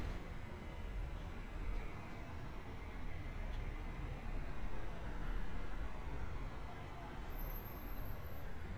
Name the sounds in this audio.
background noise